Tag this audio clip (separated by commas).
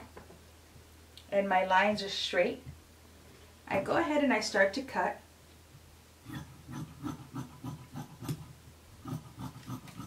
Speech